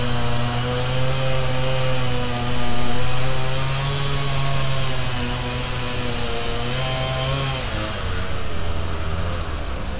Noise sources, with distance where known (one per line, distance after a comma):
unidentified powered saw, near